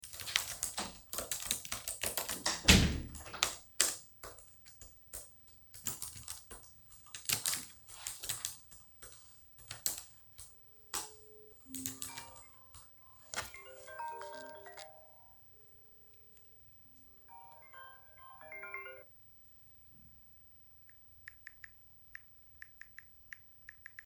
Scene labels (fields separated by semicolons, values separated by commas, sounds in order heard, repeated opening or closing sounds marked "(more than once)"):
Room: office; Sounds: keyboard typing, door, phone ringing